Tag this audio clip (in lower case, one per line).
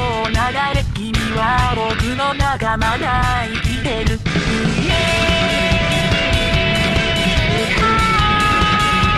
music